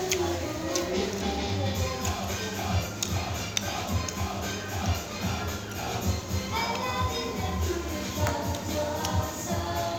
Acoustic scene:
restaurant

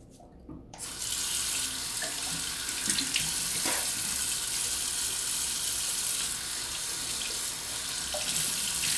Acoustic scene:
restroom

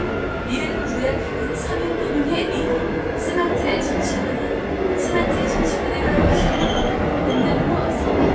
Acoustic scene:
subway train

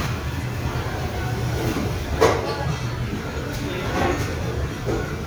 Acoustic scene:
restaurant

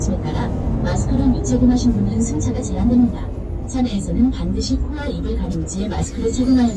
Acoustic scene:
bus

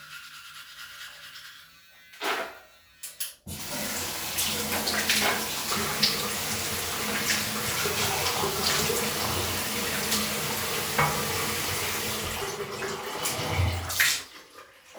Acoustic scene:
restroom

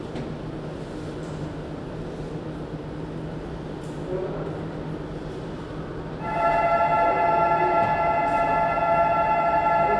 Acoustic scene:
subway station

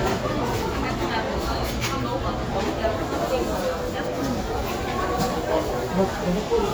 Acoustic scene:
crowded indoor space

